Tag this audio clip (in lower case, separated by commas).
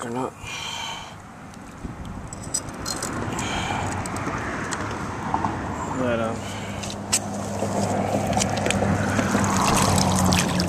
speech